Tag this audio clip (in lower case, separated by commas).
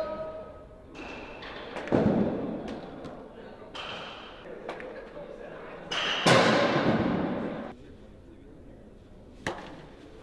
speech